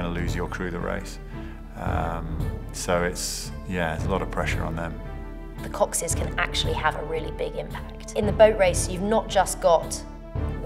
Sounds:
speech
music

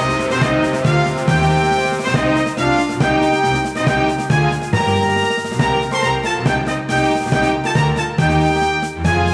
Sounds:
music

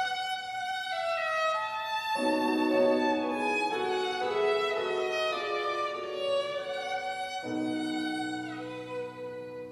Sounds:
music
musical instrument
violin

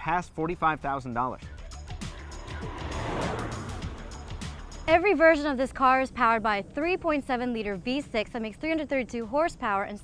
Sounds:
car passing by
vehicle
music
speech

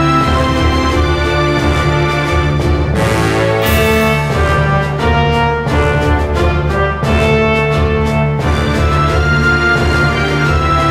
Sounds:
music
sound effect

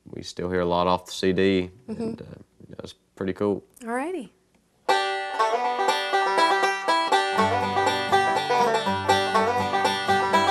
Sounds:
bluegrass
banjo
guitar
plucked string instrument
music
speech
musical instrument
country

